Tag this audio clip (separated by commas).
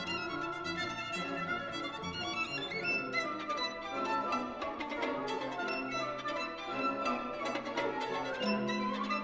Musical instrument, Music, fiddle